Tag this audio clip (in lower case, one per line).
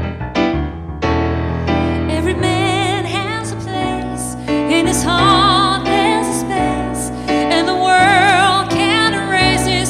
music